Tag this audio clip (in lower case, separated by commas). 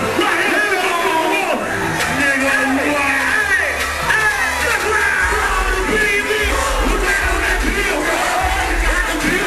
speech, music